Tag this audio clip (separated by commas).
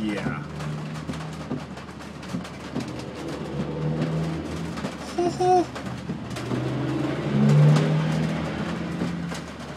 Speech